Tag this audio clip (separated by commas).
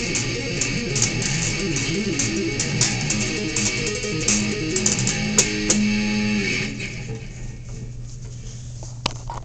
Music, Acoustic guitar, Guitar, Musical instrument